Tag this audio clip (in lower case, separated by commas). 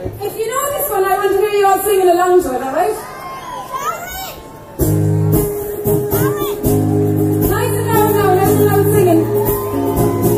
speech, musical instrument, music